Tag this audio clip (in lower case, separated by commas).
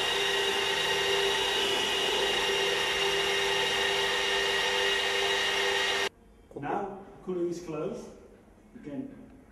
dentist's drill, speech